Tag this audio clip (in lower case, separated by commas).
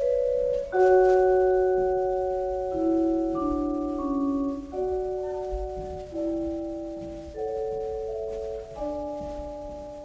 musical instrument, music